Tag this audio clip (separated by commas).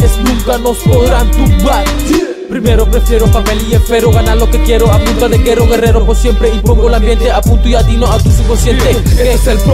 Pop music, Rhythm and blues, Jazz, Music